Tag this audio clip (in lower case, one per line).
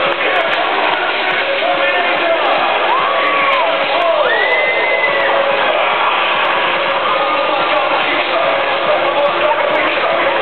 music
electronic music
techno